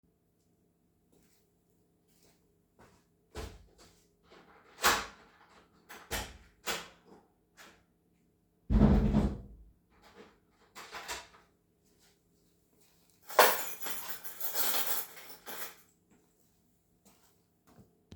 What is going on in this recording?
I opened the front door, stepped inside, and closed it behind me. I then placed my keys on the shelf.